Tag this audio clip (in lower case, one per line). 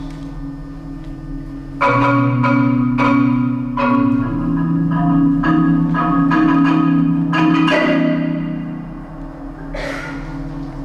music
percussion